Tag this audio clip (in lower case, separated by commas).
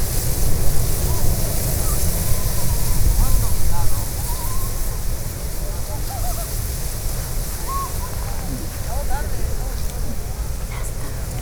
wind